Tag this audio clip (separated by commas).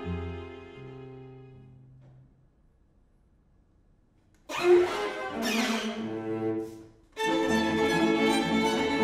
Orchestra, Violin, Bowed string instrument, Cello, Music, Musical instrument